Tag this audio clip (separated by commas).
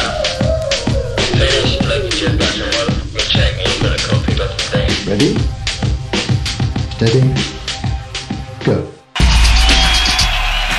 Speech, Music